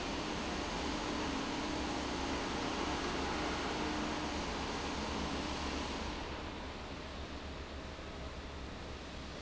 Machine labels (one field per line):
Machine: fan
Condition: abnormal